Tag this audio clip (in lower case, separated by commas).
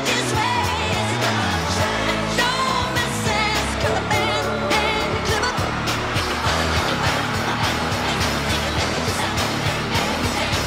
music of asia, singing